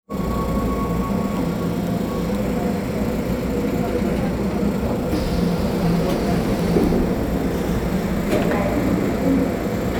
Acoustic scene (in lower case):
subway train